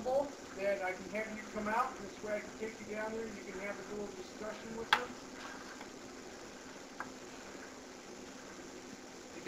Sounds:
speech, tap

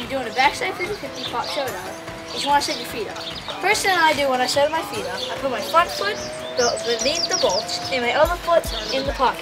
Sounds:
music, speech

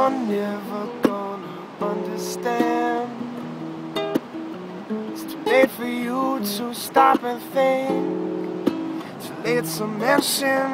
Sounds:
wind, ocean, surf

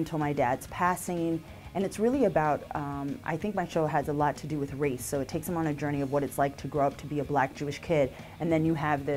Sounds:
music, speech

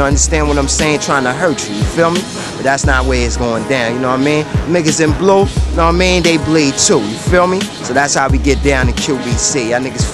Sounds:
music, speech

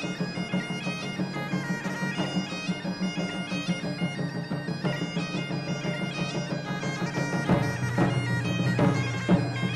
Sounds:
bagpipes, musical instrument, drum, music

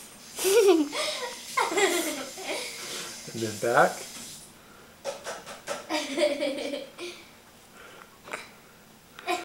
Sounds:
speech

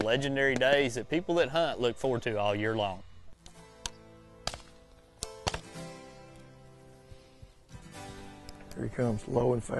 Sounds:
music, speech

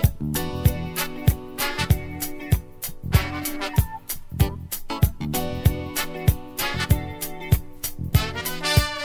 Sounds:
exciting music, music

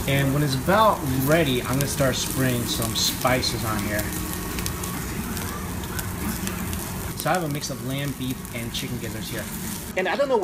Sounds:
speech, inside a small room

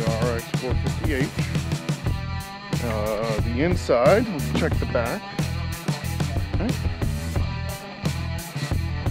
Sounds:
speech, music

